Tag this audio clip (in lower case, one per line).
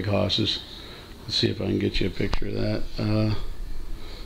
speech